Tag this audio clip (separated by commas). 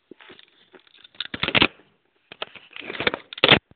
Telephone, Alarm